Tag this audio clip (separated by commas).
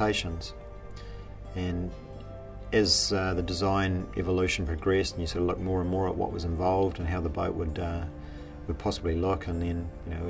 Music, Speech